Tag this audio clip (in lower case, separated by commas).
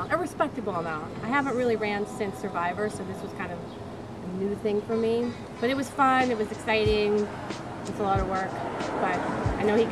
music, speech